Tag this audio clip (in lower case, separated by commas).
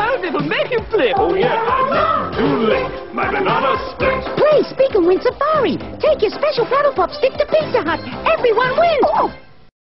music, speech